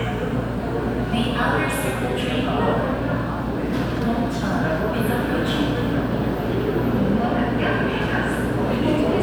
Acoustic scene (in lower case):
subway station